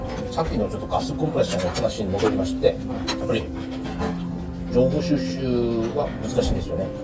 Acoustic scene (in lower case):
restaurant